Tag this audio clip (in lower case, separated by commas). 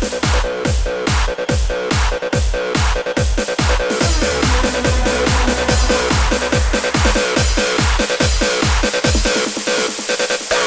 music